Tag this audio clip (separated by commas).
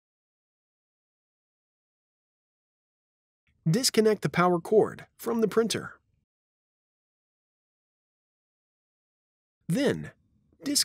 Speech